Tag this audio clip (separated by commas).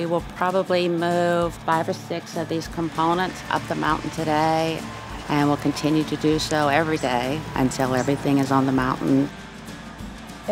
Music, Speech